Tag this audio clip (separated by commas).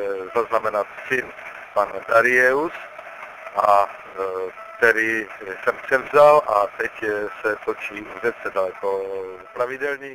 Speech